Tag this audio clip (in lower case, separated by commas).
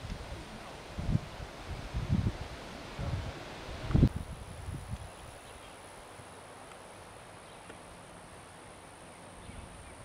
speech